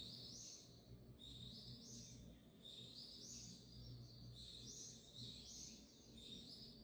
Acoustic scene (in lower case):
park